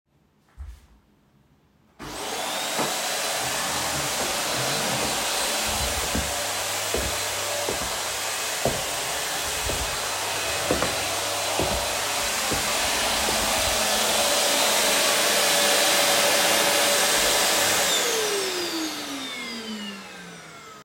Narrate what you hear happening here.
I vacuumed the living room floor while walking around the room with the vacuum cleaner.